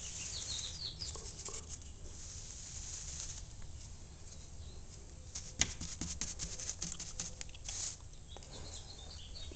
A paintbrush making strokes on a wooden surface